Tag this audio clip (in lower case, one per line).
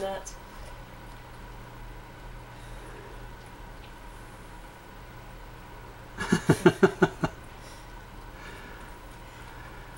speech